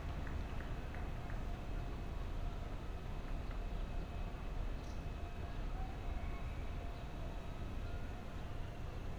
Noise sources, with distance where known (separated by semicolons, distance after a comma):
non-machinery impact, far